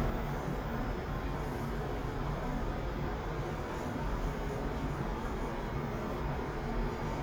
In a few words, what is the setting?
elevator